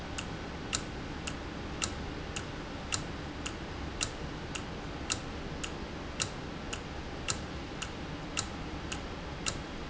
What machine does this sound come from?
valve